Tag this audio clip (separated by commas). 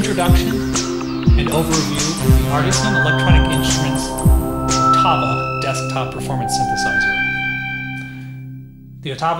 Music, Speech, Sampler